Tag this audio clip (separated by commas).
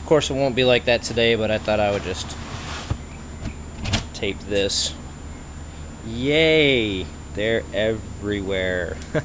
Speech